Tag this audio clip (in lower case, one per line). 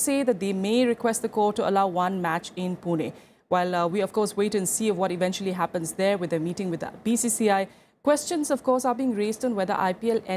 speech